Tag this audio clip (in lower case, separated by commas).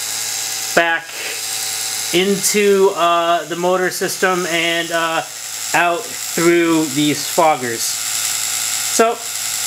speech